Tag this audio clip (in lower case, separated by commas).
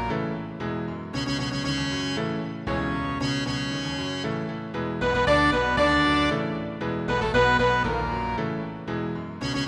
video game music, theme music, music, background music